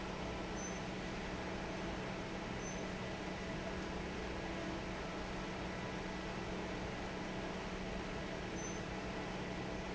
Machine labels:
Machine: fan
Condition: normal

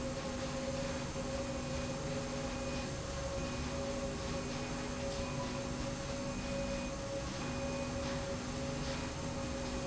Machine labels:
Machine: slide rail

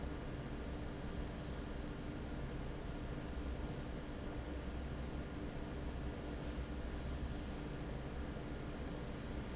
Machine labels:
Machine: fan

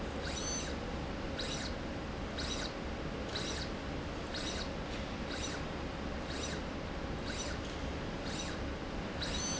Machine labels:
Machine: slide rail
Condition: abnormal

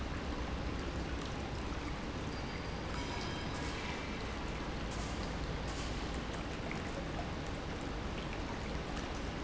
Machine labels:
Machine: pump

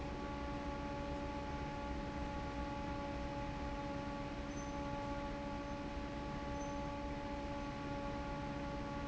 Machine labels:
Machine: fan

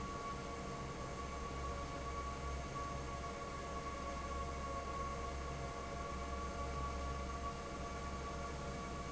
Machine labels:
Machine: fan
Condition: normal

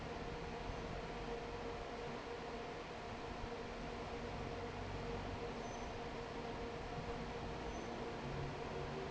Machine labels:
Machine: fan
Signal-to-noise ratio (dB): 6 dB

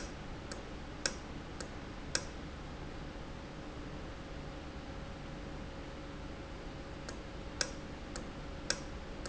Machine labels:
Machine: valve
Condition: normal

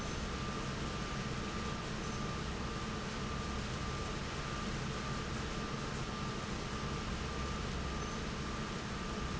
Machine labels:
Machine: fan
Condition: normal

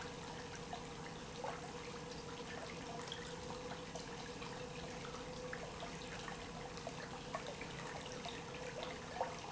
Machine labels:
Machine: pump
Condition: normal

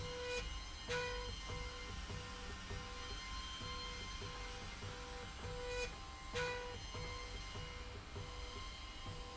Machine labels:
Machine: slide rail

